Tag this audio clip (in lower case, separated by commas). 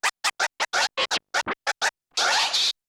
scratching (performance technique), music, musical instrument